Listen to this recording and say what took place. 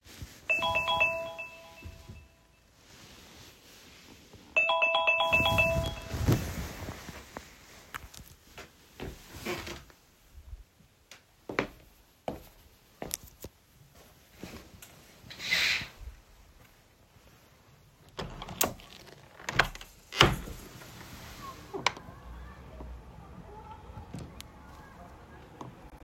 My phone alarm was ringing so I got up from my bed. After turning off the alarm, I walked over the window and opened the curtains. I twisted the window handles and opened the window wide open.